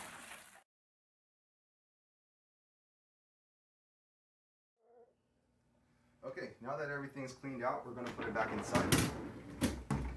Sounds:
opening or closing drawers

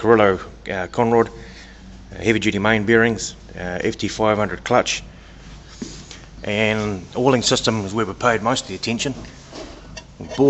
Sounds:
speech

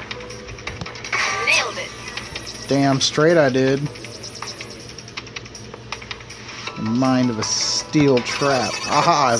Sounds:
music
speech
inside a small room

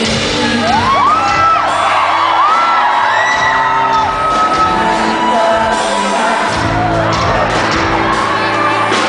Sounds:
singing
pop music
music
yell

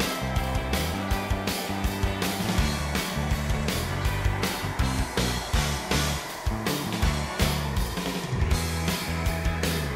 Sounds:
music

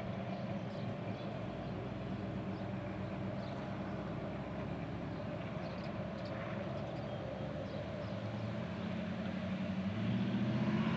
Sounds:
vehicle
car

